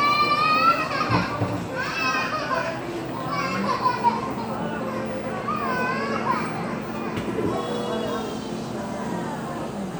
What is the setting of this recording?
cafe